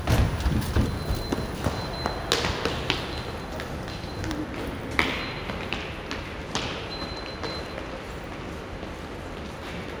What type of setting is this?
subway station